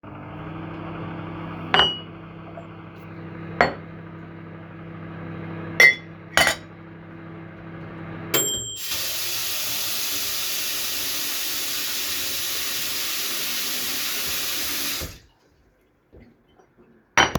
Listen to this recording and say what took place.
I was washing some dishes and a baking sound of microwave is coming from background with timer ended.